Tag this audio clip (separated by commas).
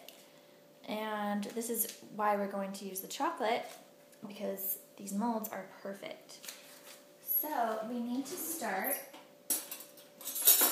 Speech, inside a small room